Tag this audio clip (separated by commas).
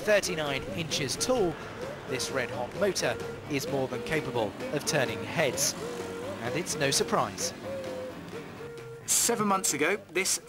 Vehicle, Motor vehicle (road), Speech, Music